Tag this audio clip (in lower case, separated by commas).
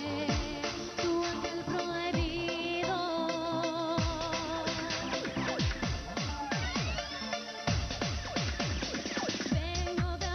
music, female singing